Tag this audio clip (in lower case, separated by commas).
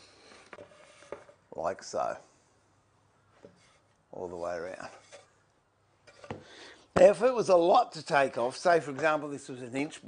planing timber